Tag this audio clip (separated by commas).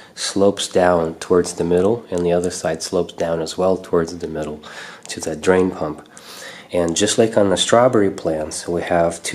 Speech